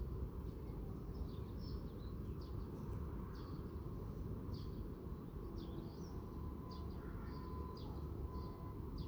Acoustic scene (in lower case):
park